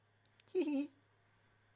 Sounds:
laughter, human voice

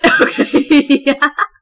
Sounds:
human voice, laughter

